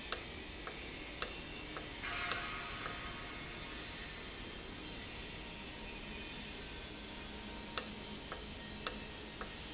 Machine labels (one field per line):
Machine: valve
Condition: normal